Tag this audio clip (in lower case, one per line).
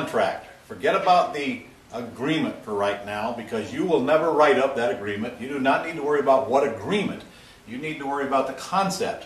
speech